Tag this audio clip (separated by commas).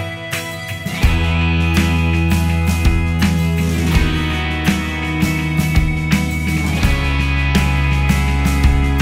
Music